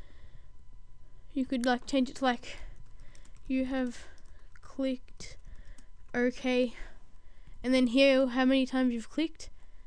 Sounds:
Speech

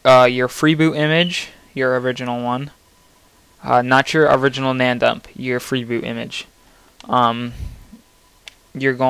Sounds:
Speech

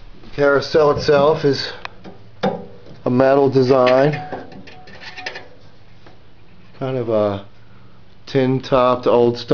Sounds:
Speech

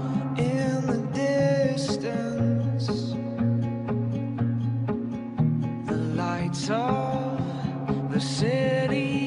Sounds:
Music

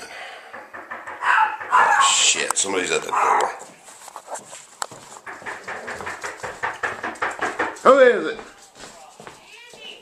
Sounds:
Yip, canids, Dog, Bark, Speech

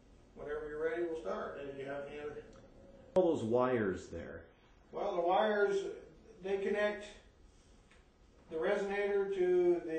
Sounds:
Speech

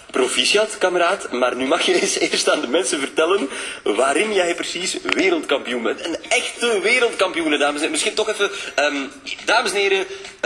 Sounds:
Speech

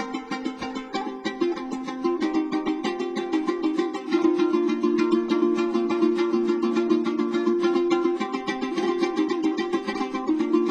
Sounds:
Music, Mandolin, Musical instrument

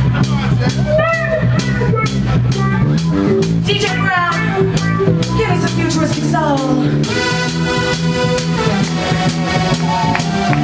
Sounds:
Pop music, Music, Speech

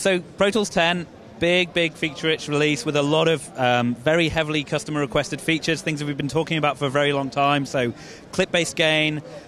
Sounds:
Speech

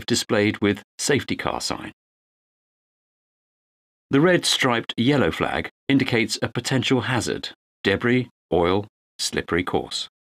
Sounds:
Speech, monologue

